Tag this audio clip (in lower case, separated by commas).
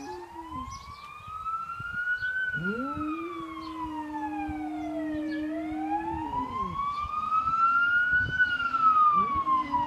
police car (siren), emergency vehicle, siren